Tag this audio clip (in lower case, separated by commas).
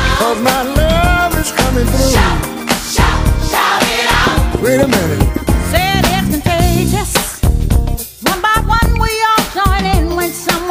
music, singing, funk